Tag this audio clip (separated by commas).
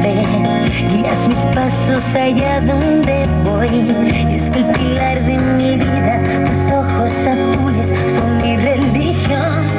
Radio, Music